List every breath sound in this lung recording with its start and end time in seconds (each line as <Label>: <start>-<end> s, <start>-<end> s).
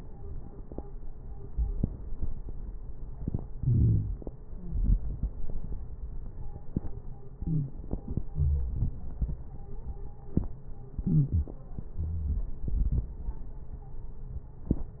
Inhalation: 3.57-4.55 s, 7.29-8.28 s, 10.96-11.94 s
Exhalation: 4.49-5.35 s, 8.28-9.64 s, 11.95-13.72 s
Wheeze: 4.47-4.81 s, 7.37-7.70 s, 11.01-11.55 s, 11.95-12.65 s
Crackles: 3.59-4.50 s, 8.28-9.61 s